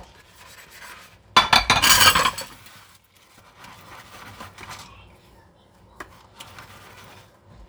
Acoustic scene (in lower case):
kitchen